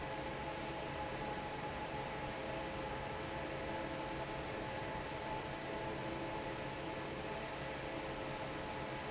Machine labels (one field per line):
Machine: fan